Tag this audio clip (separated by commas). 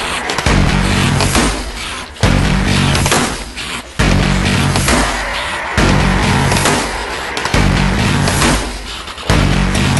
Music